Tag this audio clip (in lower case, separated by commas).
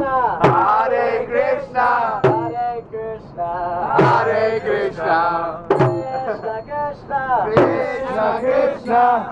mantra, music